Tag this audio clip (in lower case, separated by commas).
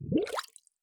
gurgling, water